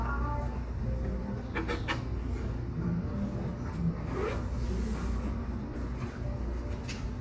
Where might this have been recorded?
in a cafe